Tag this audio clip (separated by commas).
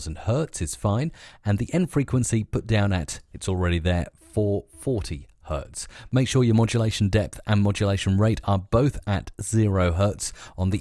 Speech